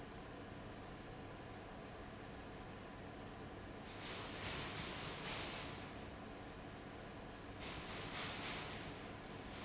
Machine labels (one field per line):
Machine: fan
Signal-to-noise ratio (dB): 6 dB